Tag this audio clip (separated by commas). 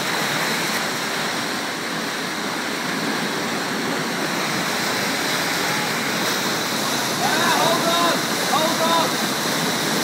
Stream, stream burbling